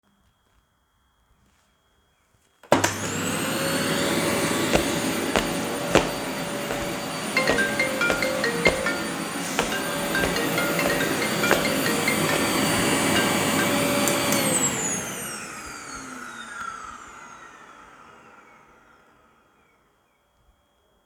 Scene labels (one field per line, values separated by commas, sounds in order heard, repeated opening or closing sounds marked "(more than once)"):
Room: living room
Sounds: vacuum cleaner, footsteps, phone ringing